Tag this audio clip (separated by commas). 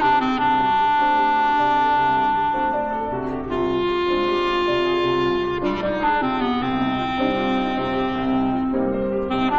playing clarinet